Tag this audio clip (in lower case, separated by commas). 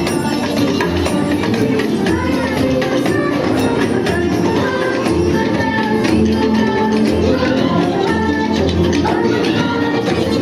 music, rattle (instrument)